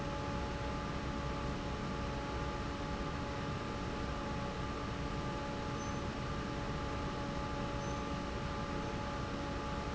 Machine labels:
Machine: fan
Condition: normal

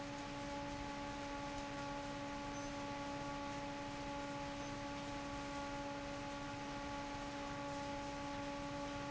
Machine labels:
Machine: fan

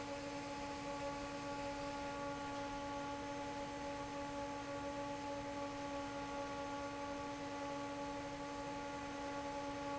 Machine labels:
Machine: fan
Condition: normal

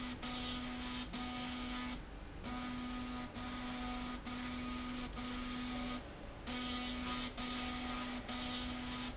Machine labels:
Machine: slide rail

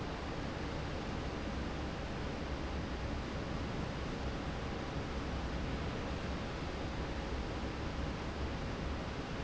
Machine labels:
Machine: fan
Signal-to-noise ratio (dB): -6 dB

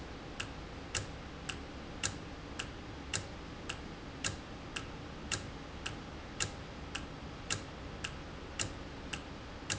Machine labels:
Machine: valve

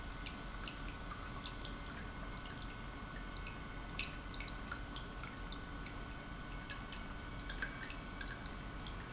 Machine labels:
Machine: pump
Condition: normal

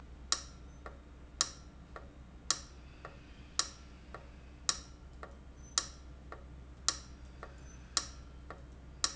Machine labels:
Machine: valve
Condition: abnormal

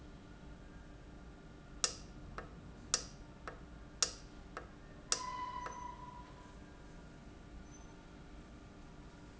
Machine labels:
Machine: valve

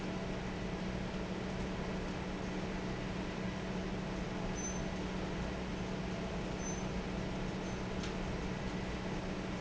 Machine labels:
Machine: fan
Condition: normal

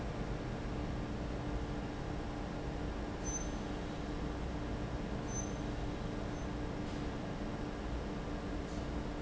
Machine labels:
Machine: fan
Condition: abnormal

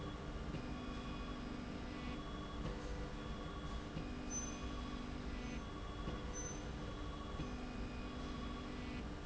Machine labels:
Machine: slide rail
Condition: normal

